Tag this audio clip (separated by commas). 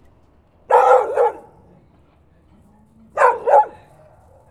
Dog, Bark, pets, Animal